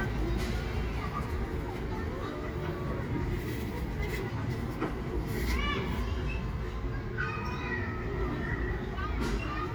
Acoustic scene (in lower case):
residential area